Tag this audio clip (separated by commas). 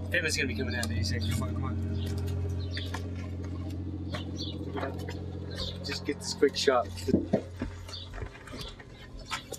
outside, rural or natural, Speech